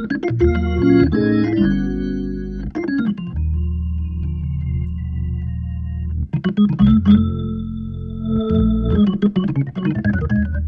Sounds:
playing hammond organ

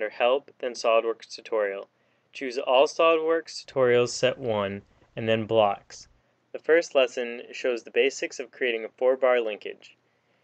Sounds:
Speech

